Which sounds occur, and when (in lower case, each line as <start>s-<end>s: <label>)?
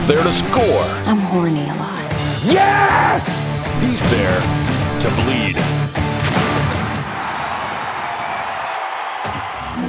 0.0s-8.7s: music
0.1s-1.0s: man speaking
1.0s-1.9s: female speech
2.4s-3.4s: shout
3.6s-4.5s: man speaking
4.0s-4.3s: sound effect
5.0s-5.5s: man speaking
6.2s-6.6s: whack
6.2s-9.8s: crowd
7.2s-7.3s: tick
9.2s-9.5s: thump
9.5s-9.8s: music